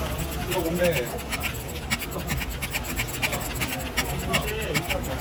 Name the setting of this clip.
crowded indoor space